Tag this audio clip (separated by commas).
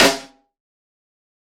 Music, Musical instrument, Snare drum, Drum, Percussion